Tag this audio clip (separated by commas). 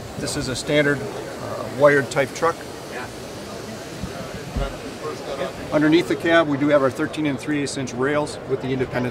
Speech